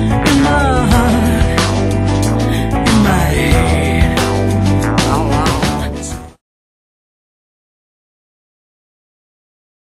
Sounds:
Music

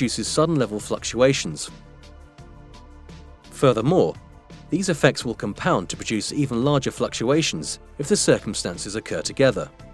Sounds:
Speech, Music

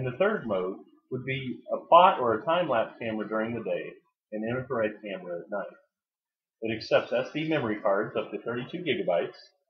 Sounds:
Speech

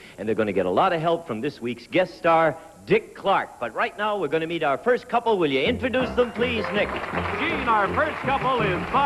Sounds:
Speech, Music

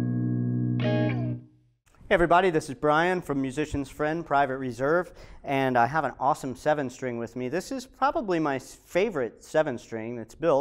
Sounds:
Music, Guitar, Bass guitar, Speech, Plucked string instrument

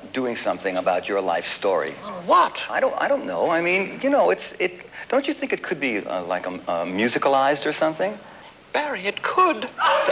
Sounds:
Speech

